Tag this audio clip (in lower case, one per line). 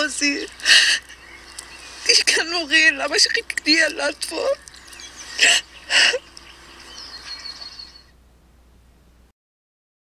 speech
outside, rural or natural